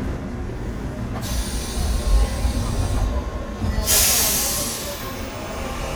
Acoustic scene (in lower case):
subway train